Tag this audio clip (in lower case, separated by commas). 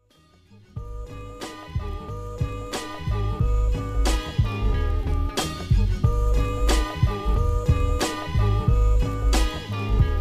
music